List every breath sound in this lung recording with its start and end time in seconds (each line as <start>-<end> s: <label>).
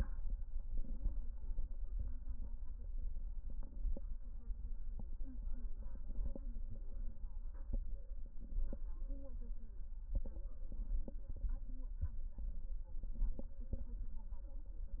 0.59-1.69 s: inhalation
3.32-4.42 s: inhalation
5.71-6.81 s: inhalation
8.14-9.24 s: inhalation
10.66-11.77 s: inhalation
12.98-14.08 s: inhalation